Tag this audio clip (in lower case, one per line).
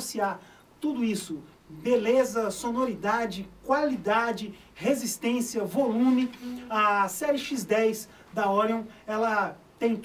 speech